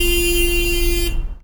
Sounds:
car horn, Alarm, Vehicle, Car, Motor vehicle (road)

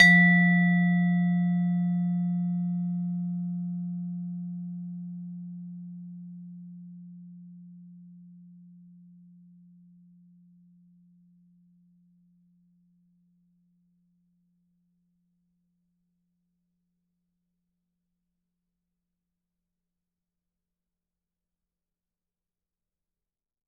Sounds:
Musical instrument, Music, Mallet percussion, Percussion

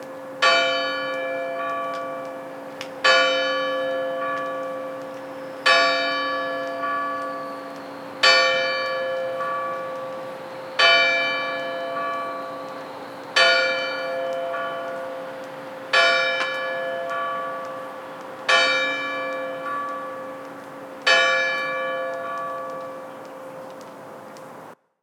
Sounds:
Bell, Church bell

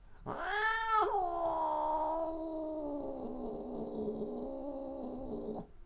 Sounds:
Cat, Animal, pets

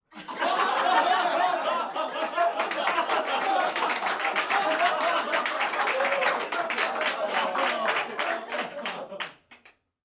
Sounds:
Applause, Human group actions

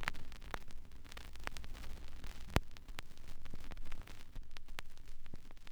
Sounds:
Crackle

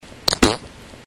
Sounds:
Fart

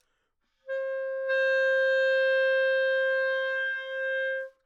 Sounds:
Music, Wind instrument, Musical instrument

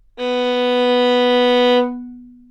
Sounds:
Music, Bowed string instrument, Musical instrument

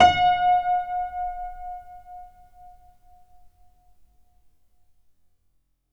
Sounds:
Music, Keyboard (musical), Musical instrument, Piano

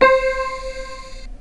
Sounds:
Musical instrument, Keyboard (musical), Music

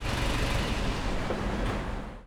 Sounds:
Motor vehicle (road), Car, Vehicle, Engine

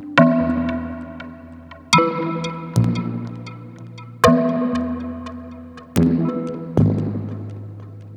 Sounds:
Music, Keyboard (musical), Musical instrument

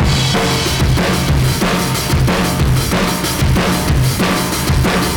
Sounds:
Music, Drum kit, Percussion, Musical instrument

